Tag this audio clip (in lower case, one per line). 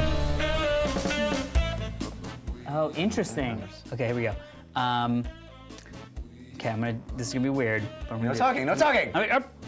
speech
music